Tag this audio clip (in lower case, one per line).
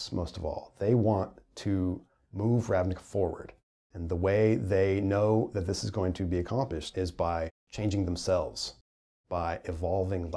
speech